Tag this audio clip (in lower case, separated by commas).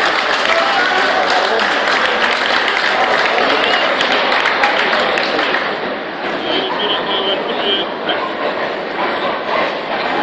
bow-wow, speech, yip